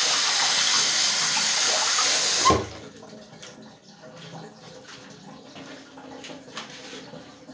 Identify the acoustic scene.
restroom